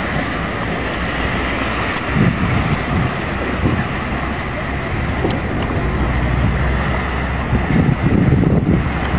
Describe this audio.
Light wind and water running